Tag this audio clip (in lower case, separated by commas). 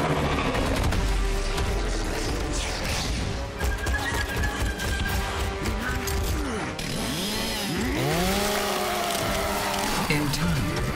music